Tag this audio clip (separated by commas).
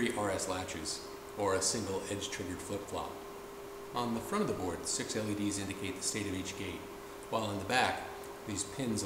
Speech